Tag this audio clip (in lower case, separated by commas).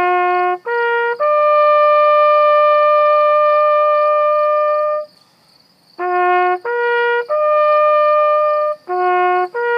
playing bugle